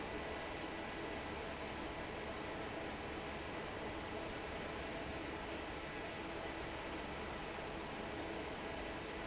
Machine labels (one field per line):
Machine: fan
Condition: normal